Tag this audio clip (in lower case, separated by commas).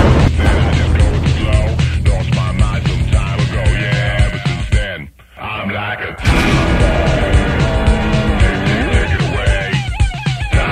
music, speech